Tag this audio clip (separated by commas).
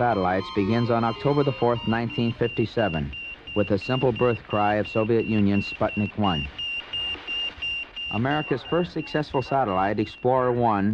bleep, Speech